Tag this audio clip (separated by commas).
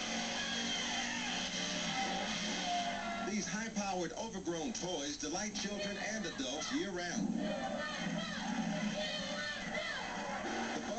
Speech, Vehicle